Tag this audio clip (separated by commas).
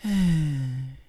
Human voice, Sigh